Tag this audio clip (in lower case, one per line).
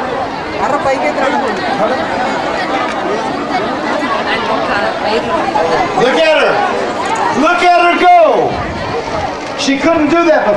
speech
outside, urban or man-made